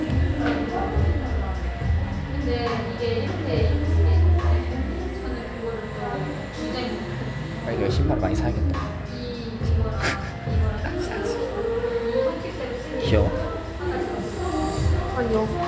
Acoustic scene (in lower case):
cafe